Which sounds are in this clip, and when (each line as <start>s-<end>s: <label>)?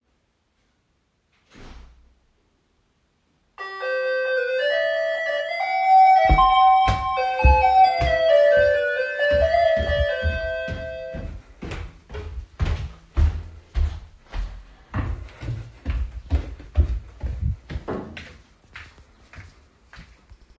1.4s-2.0s: door
3.5s-11.4s: bell ringing
6.3s-20.6s: footsteps